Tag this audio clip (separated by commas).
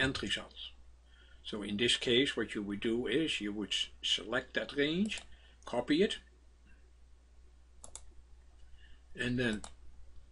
Clicking, Speech